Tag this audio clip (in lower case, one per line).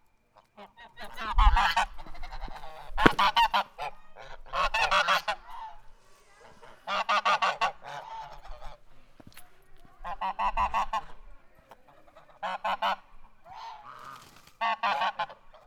fowl
livestock
animal